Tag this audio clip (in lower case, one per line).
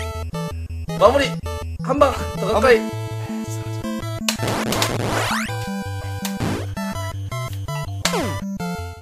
sound effect